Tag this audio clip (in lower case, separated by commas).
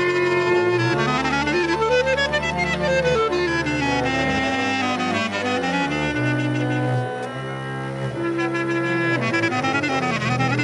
music